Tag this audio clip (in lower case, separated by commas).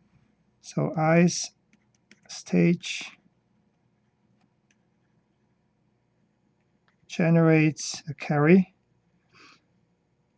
speech